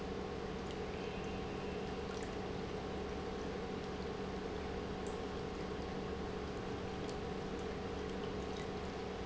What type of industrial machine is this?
pump